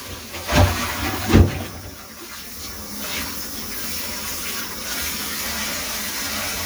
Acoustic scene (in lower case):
kitchen